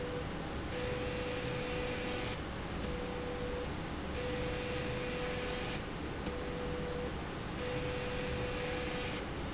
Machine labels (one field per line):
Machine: slide rail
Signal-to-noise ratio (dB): -6 dB